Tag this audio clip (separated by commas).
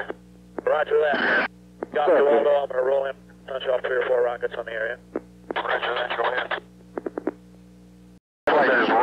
police radio chatter